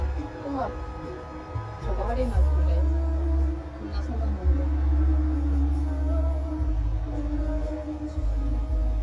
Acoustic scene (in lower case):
car